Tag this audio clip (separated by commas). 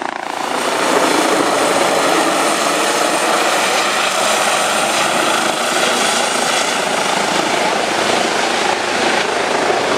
Vehicle